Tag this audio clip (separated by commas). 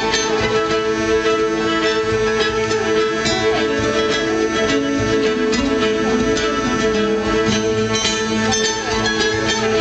Bluegrass, Harmonic, Music